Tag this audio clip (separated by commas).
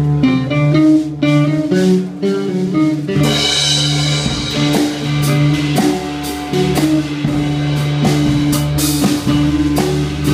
Music